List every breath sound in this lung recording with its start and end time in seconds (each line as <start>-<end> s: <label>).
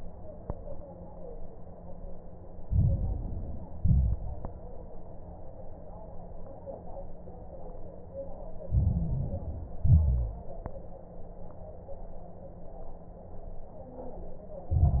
2.64-3.70 s: inhalation
2.64-3.70 s: crackles
3.80-4.46 s: exhalation
3.80-4.46 s: crackles
8.66-9.79 s: inhalation
8.66-9.79 s: crackles
9.84-10.51 s: exhalation
9.84-10.51 s: crackles
14.71-15.00 s: inhalation
14.71-15.00 s: crackles